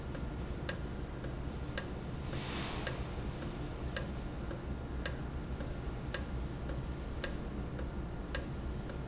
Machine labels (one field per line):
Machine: valve